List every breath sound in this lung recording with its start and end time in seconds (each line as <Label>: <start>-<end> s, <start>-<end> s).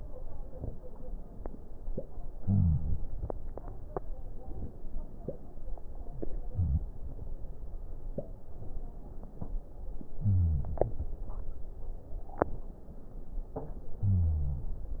Inhalation: 2.38-3.01 s, 6.25-6.87 s, 10.25-10.86 s, 14.04-14.65 s
Wheeze: 2.38-3.01 s, 10.25-10.86 s, 14.04-14.65 s